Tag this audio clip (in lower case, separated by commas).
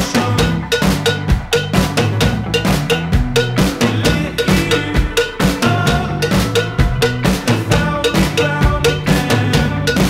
bass drum, percussion, drum, rimshot, snare drum, drum kit